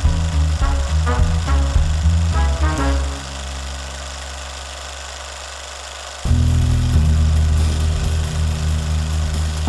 A film reel rolling as music is playing